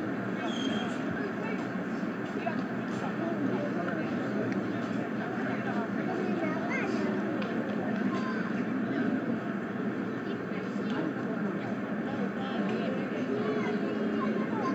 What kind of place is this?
residential area